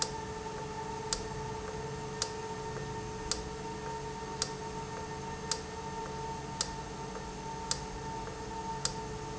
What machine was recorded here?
valve